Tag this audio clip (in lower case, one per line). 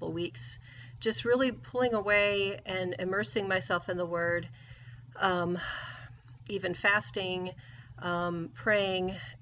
speech